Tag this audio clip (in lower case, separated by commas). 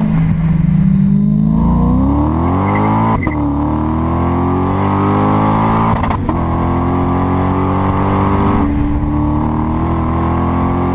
vehicle, accelerating